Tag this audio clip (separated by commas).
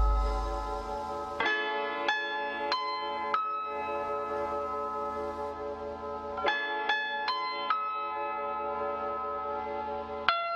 Music